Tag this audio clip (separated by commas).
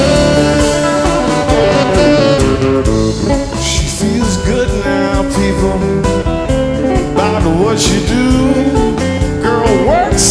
Blues, Music